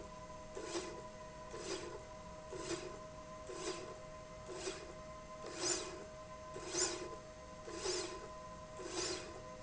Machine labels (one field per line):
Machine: slide rail